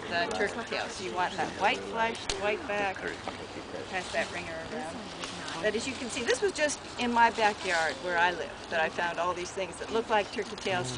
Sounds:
Speech

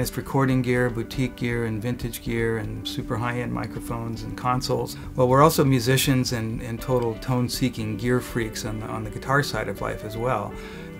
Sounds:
Music, Speech

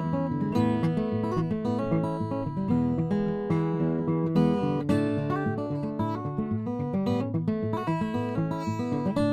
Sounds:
Music, Acoustic guitar

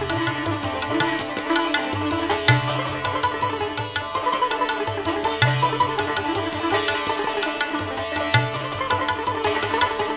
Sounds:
playing sitar

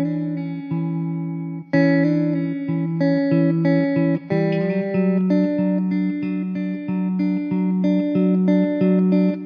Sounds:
Sad music, Music

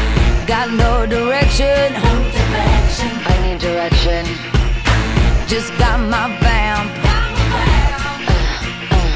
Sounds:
Music

